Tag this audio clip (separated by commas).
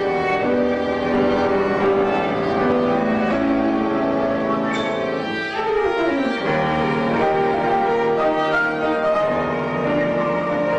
fiddle, Keyboard (musical), Music, Musical instrument, Piano